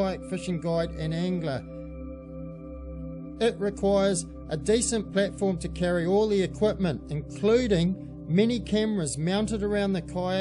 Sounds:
Speech, Music

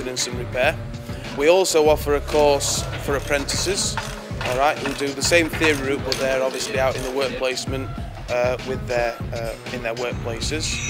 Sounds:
Music, Speech

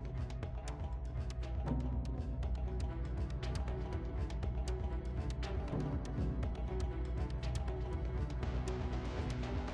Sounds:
Throbbing, Hum

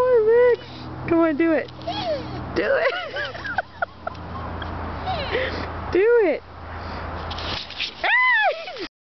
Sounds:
Speech

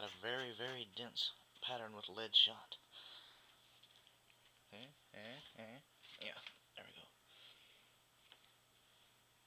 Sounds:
Speech

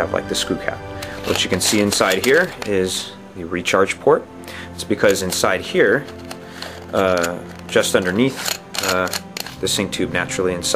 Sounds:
Music, Speech

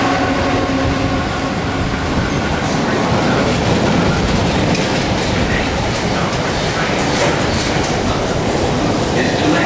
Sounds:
Speech

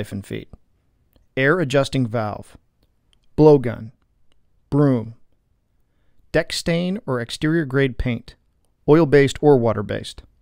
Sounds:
Speech

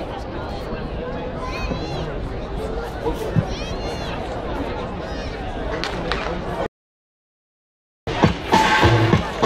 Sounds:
Speech, Music, outside, urban or man-made

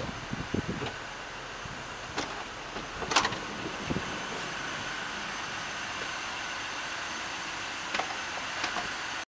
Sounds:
Sliding door, Door

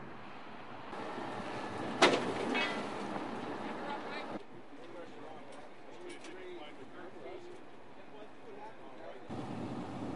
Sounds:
Vehicle, Speech

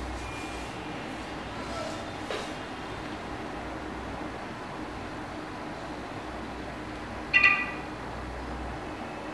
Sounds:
Single-lens reflex camera

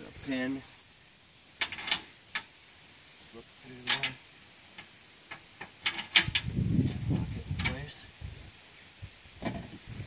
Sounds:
Speech, outside, urban or man-made

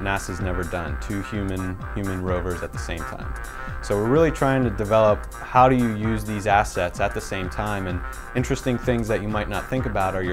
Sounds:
Speech, Music

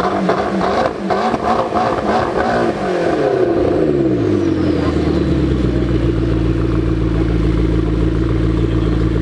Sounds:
Engine, Vehicle, Car, revving, engine accelerating

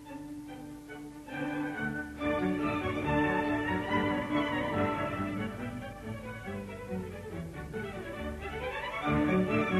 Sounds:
Music, fiddle, Musical instrument

